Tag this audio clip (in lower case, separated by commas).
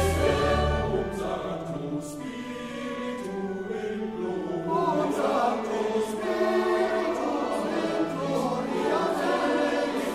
opera, choir, music